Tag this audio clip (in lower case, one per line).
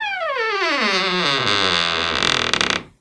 squeak